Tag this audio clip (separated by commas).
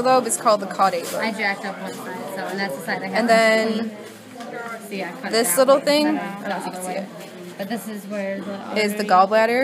Speech